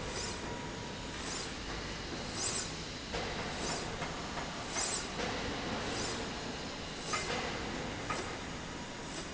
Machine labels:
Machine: slide rail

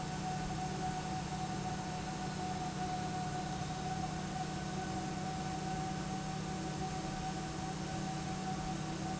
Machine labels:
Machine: pump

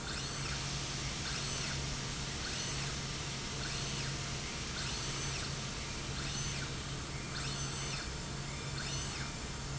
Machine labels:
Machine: slide rail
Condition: normal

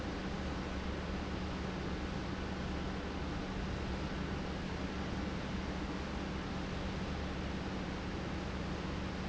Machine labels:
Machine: pump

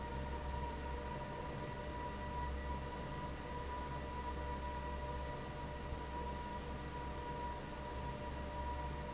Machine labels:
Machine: fan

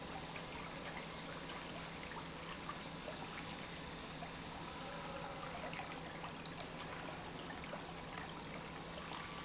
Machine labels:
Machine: pump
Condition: normal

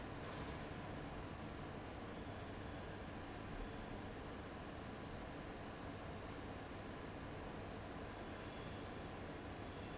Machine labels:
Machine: fan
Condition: abnormal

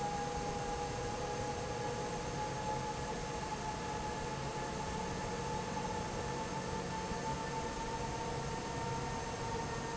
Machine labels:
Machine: fan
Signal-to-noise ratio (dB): -6 dB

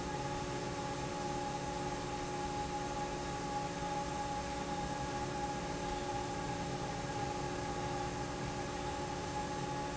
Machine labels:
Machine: fan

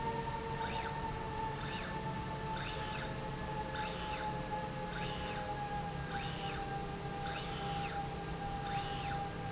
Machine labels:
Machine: slide rail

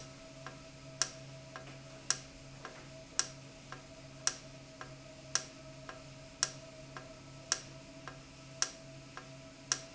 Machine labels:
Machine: valve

